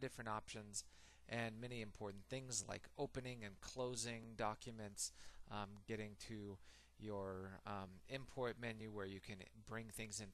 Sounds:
Speech

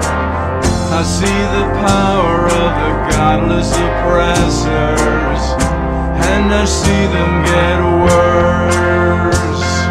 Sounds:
Music

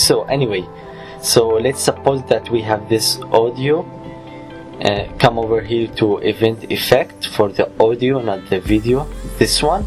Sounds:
Speech, Music

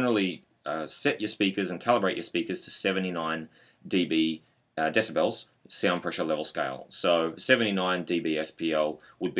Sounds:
Speech

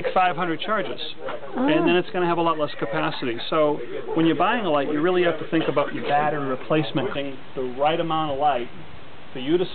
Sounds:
Speech

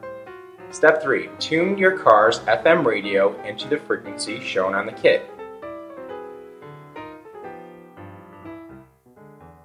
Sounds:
Music, Speech

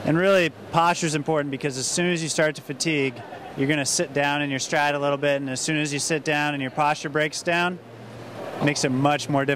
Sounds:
inside a public space, Speech

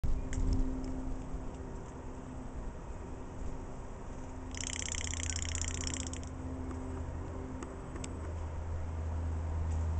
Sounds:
Rattle, Bird

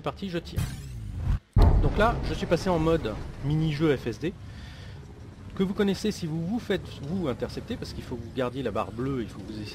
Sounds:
Speech

